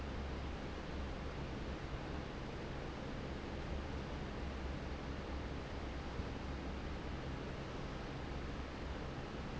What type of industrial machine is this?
fan